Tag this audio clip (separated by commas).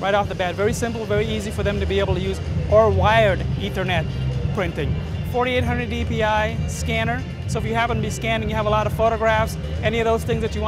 Speech, Music